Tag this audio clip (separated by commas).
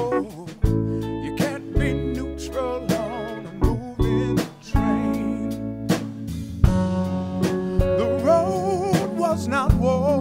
Music